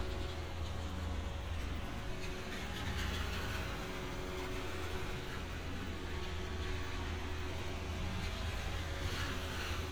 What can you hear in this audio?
engine of unclear size